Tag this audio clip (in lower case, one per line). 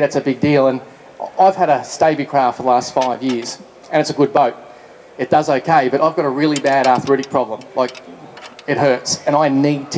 speech